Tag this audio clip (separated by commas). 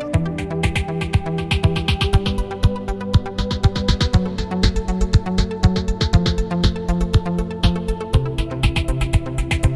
Music